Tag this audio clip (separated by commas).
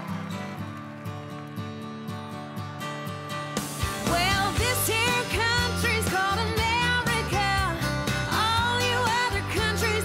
Music